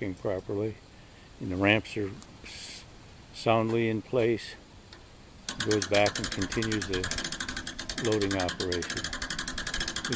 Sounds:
speech

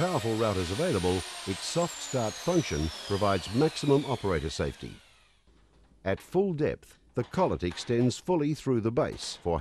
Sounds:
power tool, tools

